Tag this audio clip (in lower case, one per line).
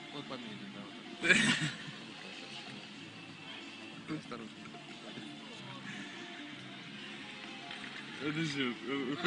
speech
music